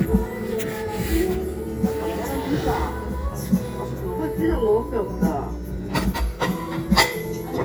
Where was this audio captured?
in a crowded indoor space